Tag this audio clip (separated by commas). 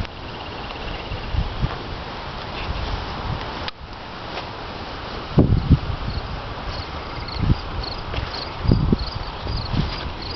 outside, rural or natural